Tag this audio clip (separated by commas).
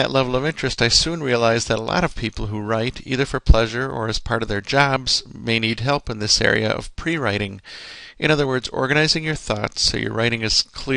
Speech